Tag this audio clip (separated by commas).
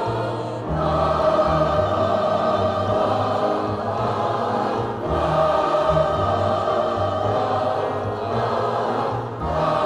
singing choir